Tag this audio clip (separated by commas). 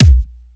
Keyboard (musical), Music, Musical instrument, Drum, Percussion, Bass drum